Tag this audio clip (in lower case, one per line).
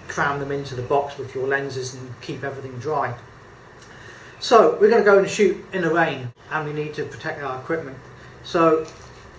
speech